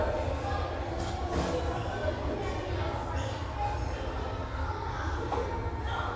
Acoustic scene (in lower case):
restaurant